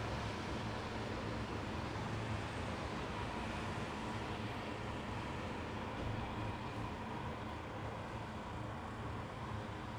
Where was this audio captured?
in a residential area